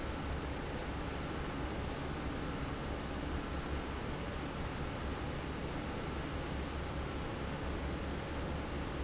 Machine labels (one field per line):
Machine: fan